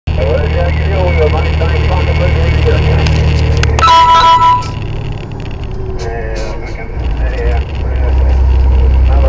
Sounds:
speech
vehicle

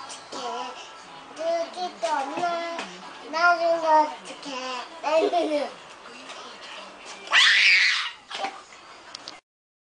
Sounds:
speech

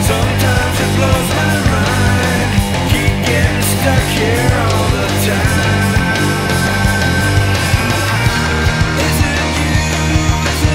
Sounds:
rock music
musical instrument
guitar
drum kit
music
drum

